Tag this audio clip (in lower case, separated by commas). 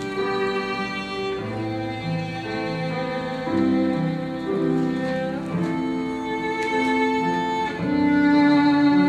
violin, musical instrument, music